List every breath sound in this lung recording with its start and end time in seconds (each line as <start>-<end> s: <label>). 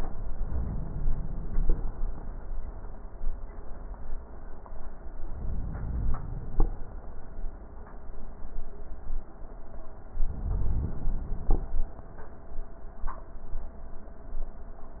5.11-6.61 s: inhalation
10.19-11.59 s: inhalation